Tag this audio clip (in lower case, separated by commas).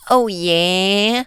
human voice